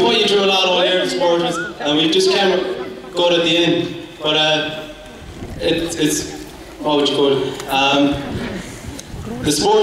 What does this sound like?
A gentleman talking in a microphone with chatter in the audience